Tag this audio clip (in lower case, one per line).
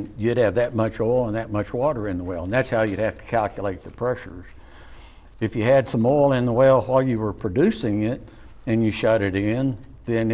speech